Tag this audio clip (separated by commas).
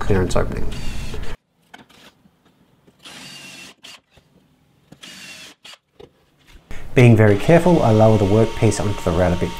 Mechanisms, Wood, Rub, pawl